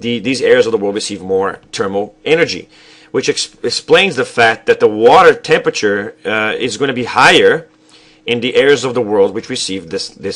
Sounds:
Speech

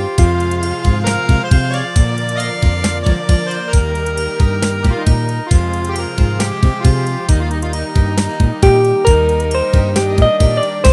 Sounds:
Music

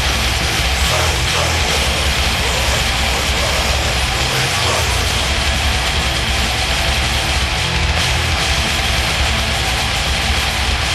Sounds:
Music

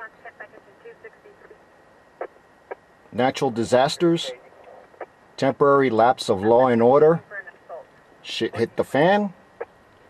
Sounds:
Speech, Radio

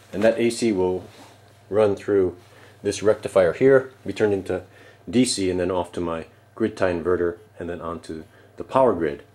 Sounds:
Speech

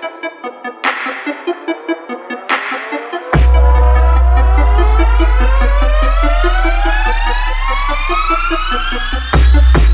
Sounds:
Music, Exciting music

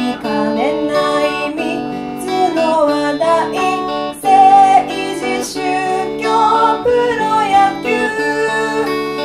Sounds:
Music

